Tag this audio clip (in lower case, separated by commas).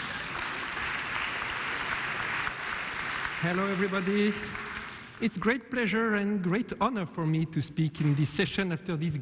speech